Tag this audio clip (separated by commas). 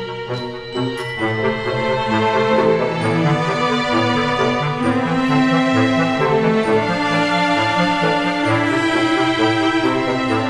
Music